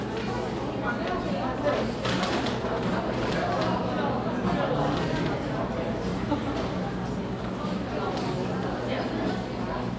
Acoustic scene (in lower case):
crowded indoor space